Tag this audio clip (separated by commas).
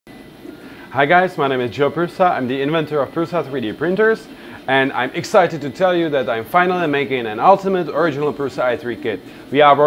Speech